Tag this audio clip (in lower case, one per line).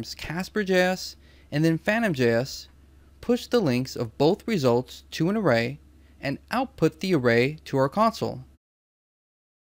speech